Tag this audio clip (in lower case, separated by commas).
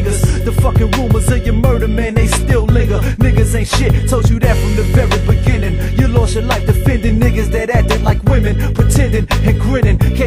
music